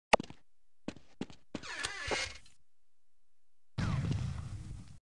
A person steps nearby, and then a door opens, followed by an explosion in the distance